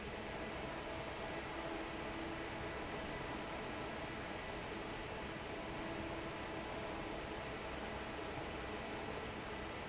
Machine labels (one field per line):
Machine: fan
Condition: normal